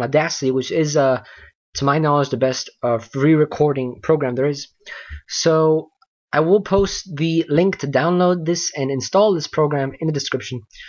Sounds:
Speech

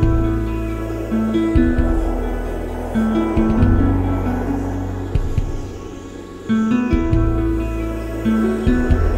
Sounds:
Music

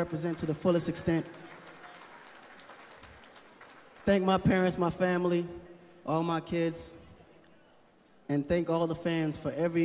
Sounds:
Speech

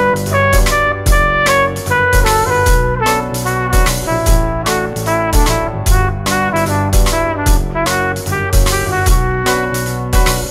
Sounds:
Music

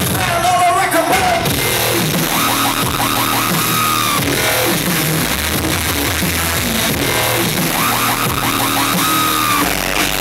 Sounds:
Techno, Electronic music, Music

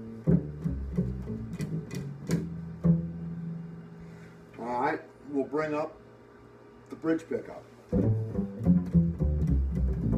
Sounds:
Speech, Music

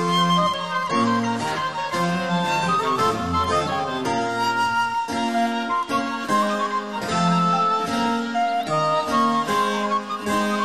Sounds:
Music

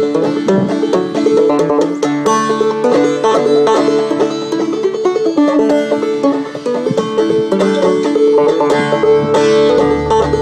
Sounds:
playing banjo

